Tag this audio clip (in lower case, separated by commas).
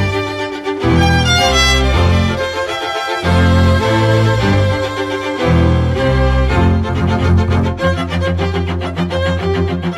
cello, music, violin